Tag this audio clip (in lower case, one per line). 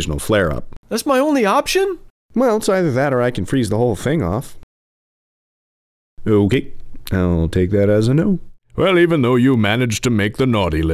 speech